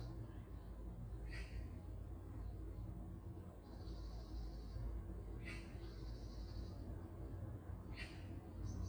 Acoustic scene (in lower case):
park